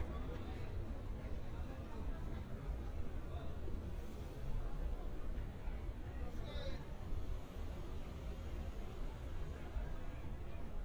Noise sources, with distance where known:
person or small group talking, far

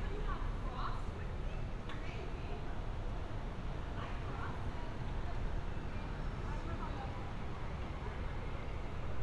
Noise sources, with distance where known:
person or small group talking

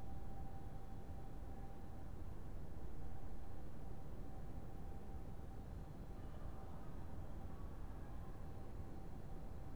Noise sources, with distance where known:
background noise

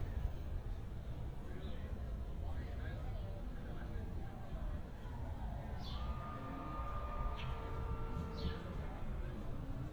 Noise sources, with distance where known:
person or small group talking, far

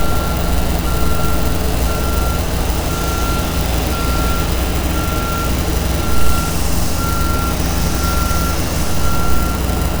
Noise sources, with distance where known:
reverse beeper, near

